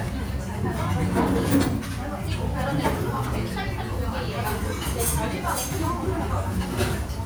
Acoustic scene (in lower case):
restaurant